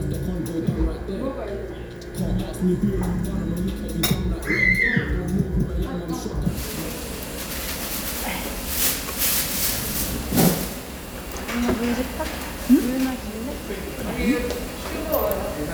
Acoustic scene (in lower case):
restaurant